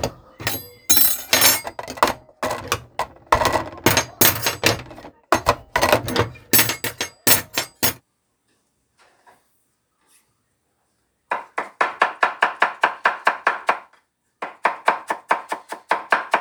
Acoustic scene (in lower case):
kitchen